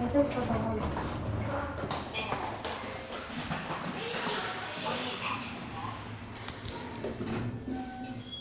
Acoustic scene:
elevator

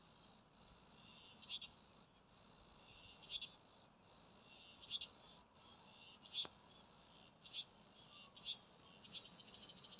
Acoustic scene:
park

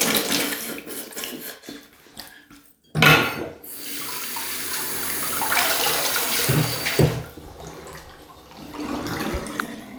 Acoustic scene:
restroom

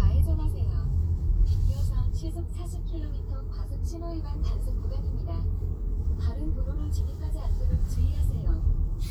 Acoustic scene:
car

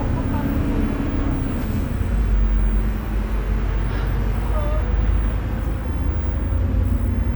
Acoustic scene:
bus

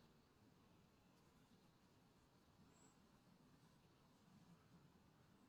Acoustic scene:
park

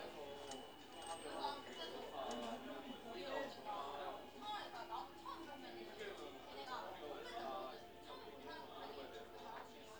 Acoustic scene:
crowded indoor space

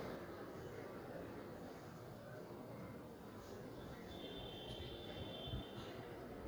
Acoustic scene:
residential area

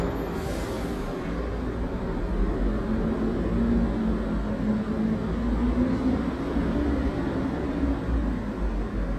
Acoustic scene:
residential area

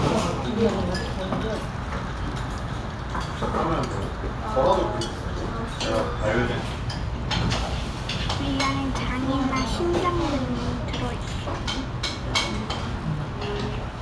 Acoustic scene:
restaurant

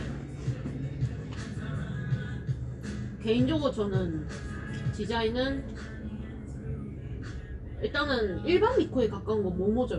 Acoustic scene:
cafe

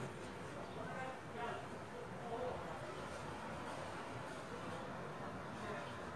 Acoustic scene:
residential area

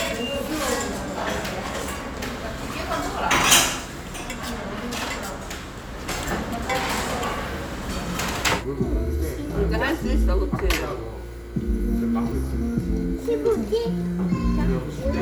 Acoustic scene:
restaurant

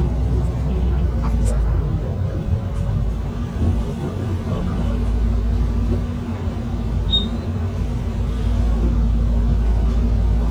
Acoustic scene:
bus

